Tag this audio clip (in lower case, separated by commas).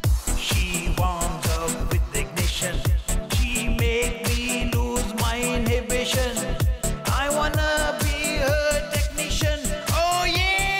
dance music, music